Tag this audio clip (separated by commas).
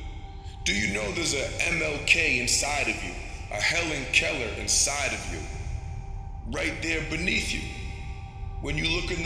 Speech, Male speech